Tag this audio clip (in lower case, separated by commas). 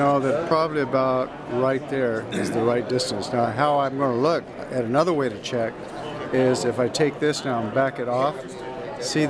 speech